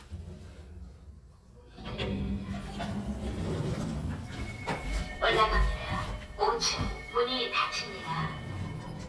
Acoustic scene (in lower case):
elevator